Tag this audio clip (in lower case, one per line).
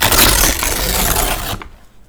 tearing